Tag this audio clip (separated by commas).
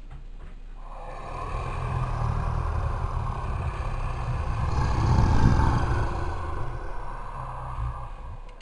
Animal